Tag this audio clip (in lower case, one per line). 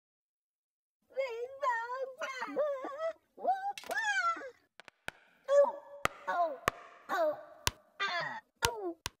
speech